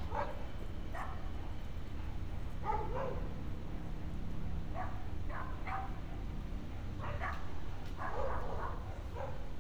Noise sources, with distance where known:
dog barking or whining, far

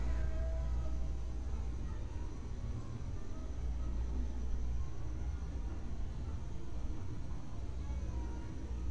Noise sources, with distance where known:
music from an unclear source, far

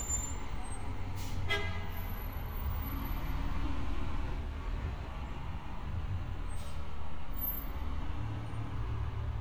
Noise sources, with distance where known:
engine of unclear size
car horn, near

